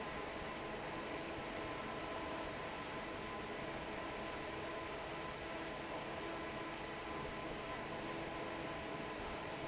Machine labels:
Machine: fan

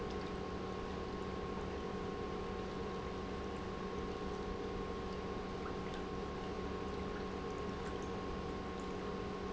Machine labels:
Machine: pump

